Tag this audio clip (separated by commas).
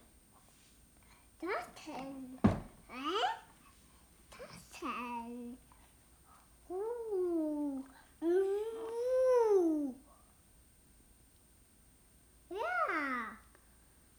Child speech, Human voice, Speech